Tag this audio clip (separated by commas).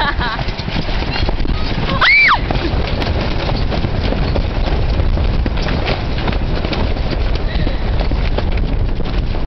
Speech